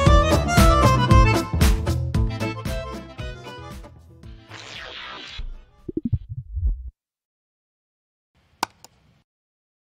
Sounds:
music

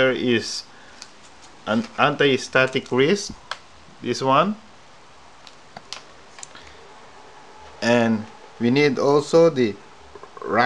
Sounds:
speech

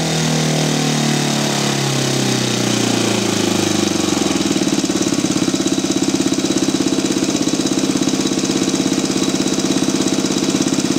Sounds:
engine
heavy engine (low frequency)

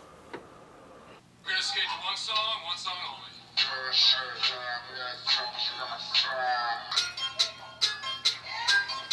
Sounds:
music
speech

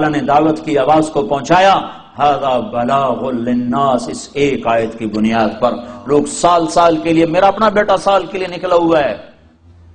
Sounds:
monologue
man speaking
speech

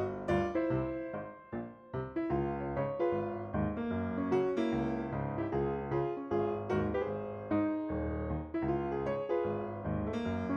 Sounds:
running electric fan

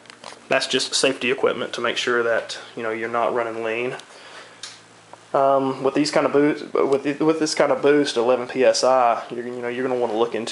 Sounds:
speech

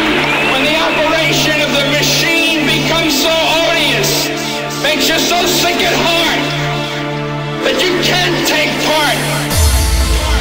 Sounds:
music
speech
sampler

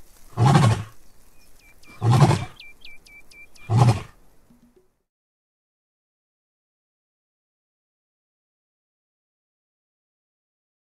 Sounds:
lions roaring

